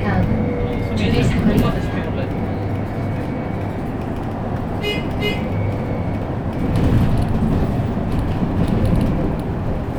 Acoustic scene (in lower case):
bus